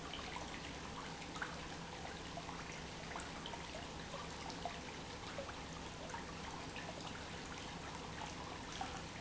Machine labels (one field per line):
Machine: pump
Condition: normal